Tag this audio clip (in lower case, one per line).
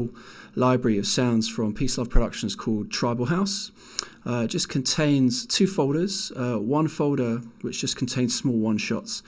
speech